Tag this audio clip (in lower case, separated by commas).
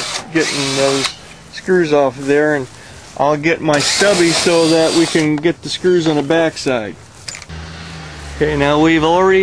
speech, tools